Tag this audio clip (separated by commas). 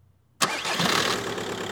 Engine starting, Engine